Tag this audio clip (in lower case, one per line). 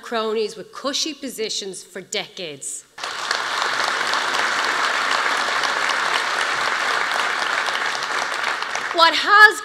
monologue
female speech
speech